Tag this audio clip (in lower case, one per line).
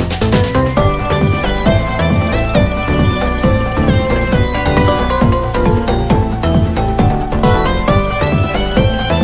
music